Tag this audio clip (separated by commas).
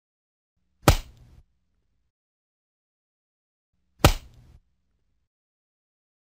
Slap